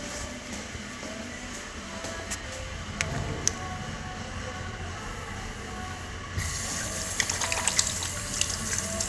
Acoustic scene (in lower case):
restroom